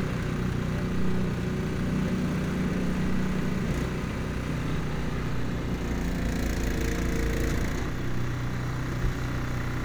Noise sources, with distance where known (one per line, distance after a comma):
engine of unclear size, near